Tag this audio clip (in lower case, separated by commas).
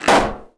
explosion